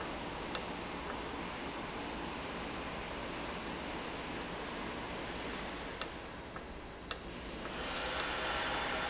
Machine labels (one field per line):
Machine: valve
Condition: normal